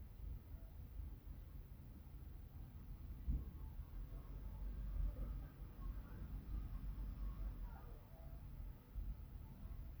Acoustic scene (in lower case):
residential area